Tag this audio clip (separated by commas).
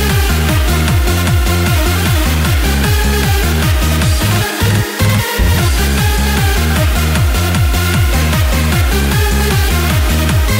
Electronic dance music, Music